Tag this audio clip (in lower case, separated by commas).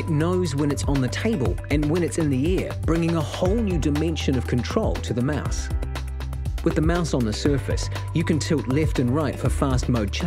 speech, music